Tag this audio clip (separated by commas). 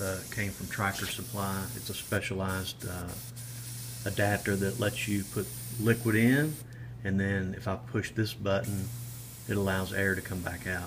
Speech, Spray